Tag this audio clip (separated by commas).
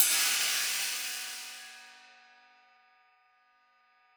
Hi-hat, Music, Percussion, Musical instrument, Cymbal